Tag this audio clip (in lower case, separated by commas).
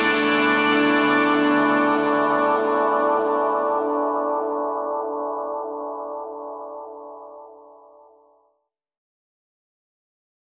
music